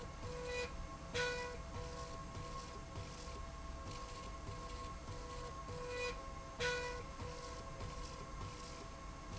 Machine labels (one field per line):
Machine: slide rail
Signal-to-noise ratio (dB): 6 dB